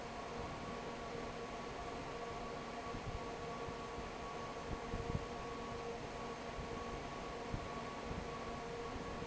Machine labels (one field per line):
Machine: fan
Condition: normal